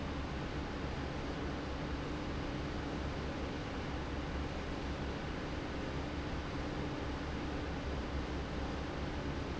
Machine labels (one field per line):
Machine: fan